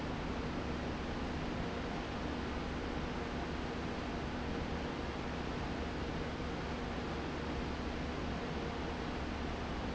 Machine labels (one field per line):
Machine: fan